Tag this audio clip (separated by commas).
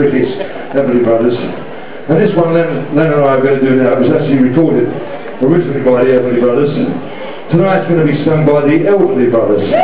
Speech